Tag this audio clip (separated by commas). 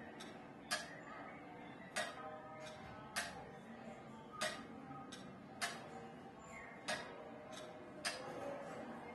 Tick, Tick-tock